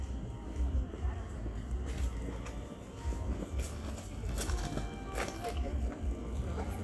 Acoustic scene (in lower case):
park